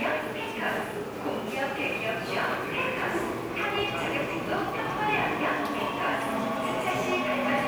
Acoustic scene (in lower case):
subway station